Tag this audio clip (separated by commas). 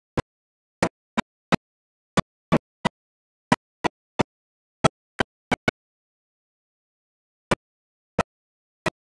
Orchestra, Music